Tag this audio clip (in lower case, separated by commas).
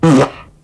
fart